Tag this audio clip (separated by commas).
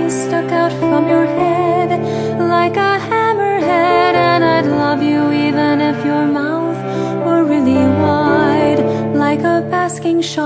Lullaby, Music